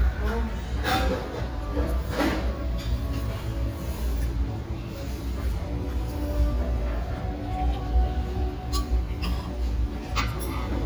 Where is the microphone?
in a restaurant